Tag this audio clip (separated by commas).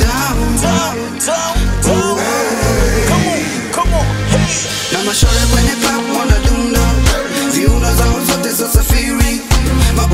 Music